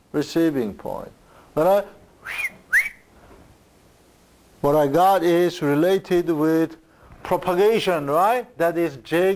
A man speaking then whistling